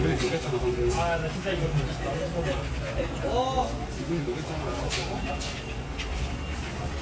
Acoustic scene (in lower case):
crowded indoor space